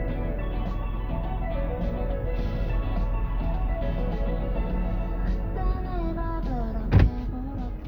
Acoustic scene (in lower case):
car